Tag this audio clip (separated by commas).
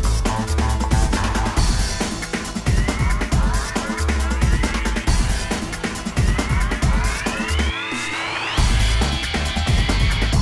Music